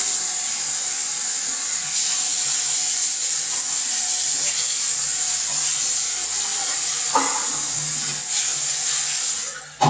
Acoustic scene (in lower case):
restroom